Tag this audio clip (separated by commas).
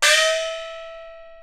Music, Percussion, Gong, Musical instrument